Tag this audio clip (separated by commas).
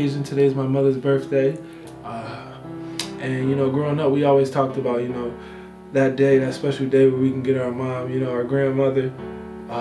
Music, Speech